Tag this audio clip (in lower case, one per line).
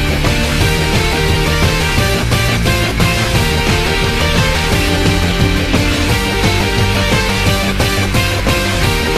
music